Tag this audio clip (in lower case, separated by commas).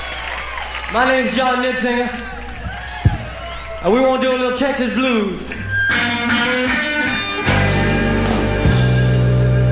speech, music, blues